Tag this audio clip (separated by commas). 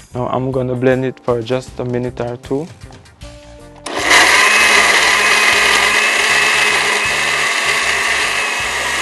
Blender